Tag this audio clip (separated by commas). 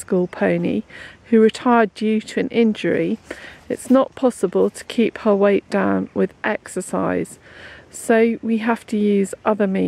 Speech